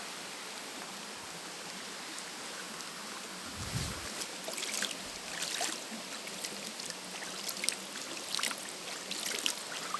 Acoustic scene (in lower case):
park